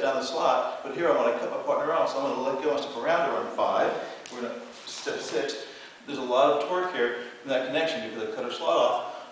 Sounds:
speech

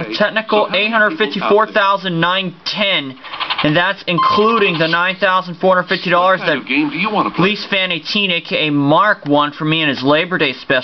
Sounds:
speech

